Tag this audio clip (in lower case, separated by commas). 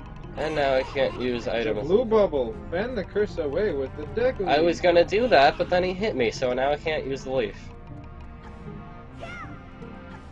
music, speech